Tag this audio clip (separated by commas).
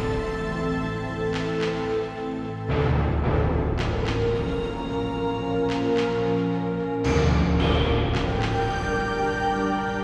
Background music, Music